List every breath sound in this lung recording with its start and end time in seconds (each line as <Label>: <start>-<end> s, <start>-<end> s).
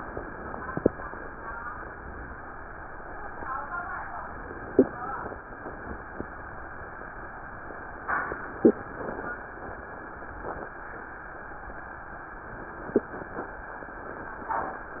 Inhalation: 0.15-1.31 s, 4.25-5.41 s, 8.22-9.37 s, 12.47-13.62 s